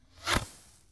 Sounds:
fireworks
explosion

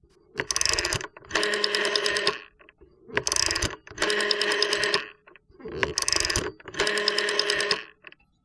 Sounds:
telephone
alarm

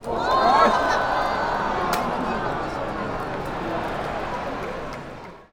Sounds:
crowd
human group actions

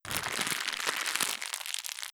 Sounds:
crackle

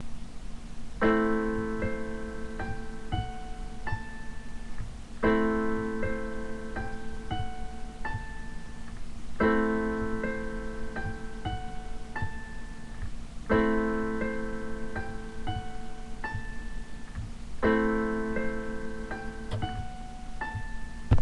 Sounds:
keyboard (musical)
musical instrument
music

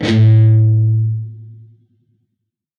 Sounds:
plucked string instrument
guitar
musical instrument
music

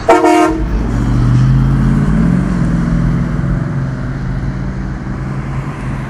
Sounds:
honking
car
vehicle
bus
motor vehicle (road)
alarm

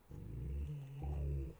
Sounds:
animal
growling
pets
dog

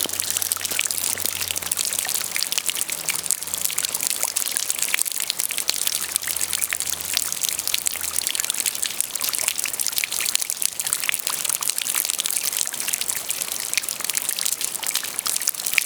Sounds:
water
rain

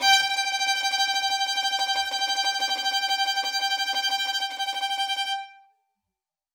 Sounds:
musical instrument
music
bowed string instrument

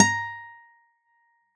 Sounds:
acoustic guitar
guitar
plucked string instrument
music
musical instrument

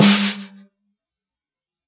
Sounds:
percussion
musical instrument
snare drum
drum
music

